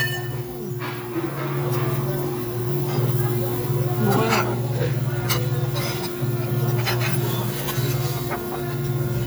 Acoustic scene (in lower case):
restaurant